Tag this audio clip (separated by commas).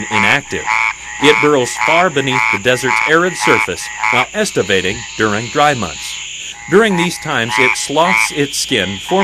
Frog, Croak